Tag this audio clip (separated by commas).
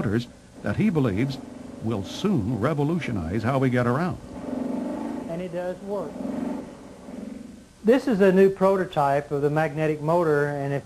Speech